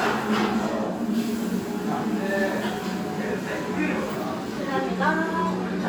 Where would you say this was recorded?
in a restaurant